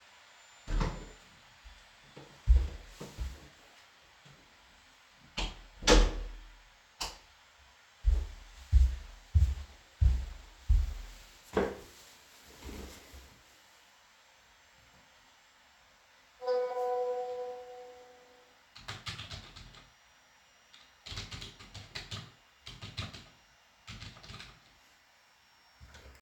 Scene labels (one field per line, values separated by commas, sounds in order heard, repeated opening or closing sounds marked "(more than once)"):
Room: office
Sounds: door (more than once), footsteps, light switch, phone ringing, keyboard typing